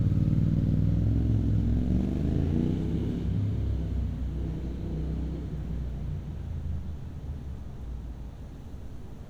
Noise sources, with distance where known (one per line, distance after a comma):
medium-sounding engine